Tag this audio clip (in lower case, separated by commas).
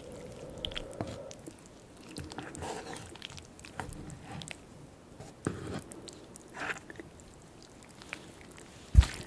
people slurping